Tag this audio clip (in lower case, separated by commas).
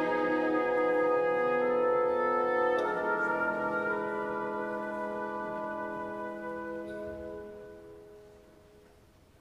orchestra, music